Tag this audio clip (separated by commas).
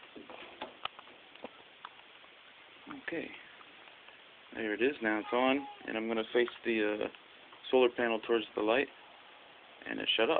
Speech